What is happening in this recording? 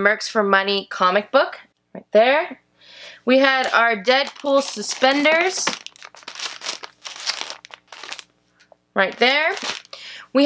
A female is speaking and rustling paper